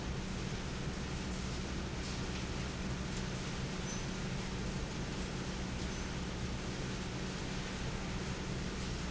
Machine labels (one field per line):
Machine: fan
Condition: normal